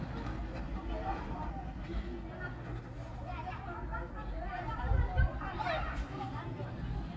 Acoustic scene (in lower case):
park